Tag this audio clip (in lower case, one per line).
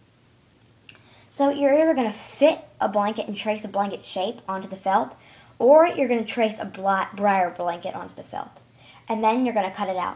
speech